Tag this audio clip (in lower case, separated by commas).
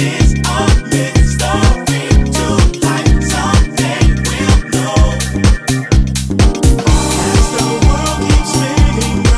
disco, music